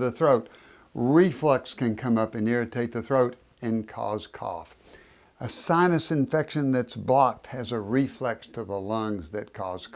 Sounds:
speech

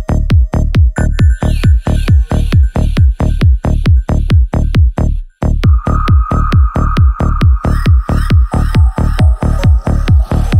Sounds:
music, sound effect

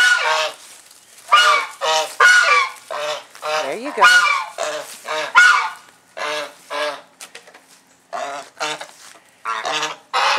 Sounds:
goose honking

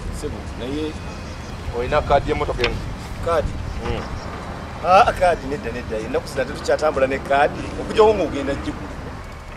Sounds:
speech, music

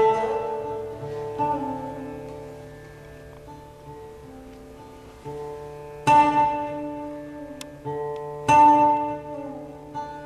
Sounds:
classical music, music, bowed string instrument

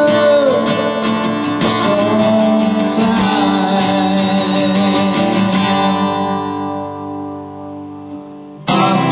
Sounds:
guitar, musical instrument, strum, plucked string instrument, music

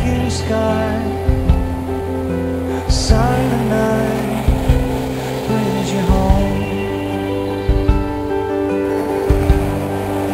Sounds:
music

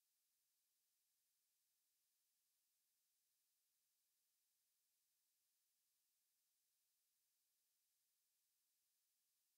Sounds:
silence

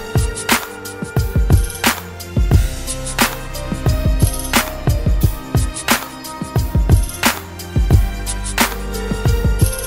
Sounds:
fiddle, musical instrument, music

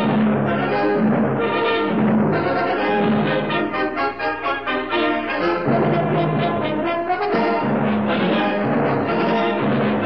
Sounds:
jazz, music

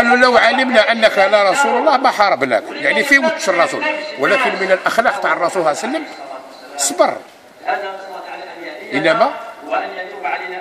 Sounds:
speech

